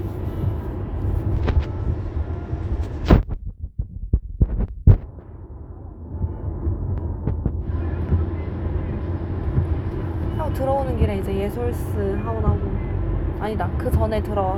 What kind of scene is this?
car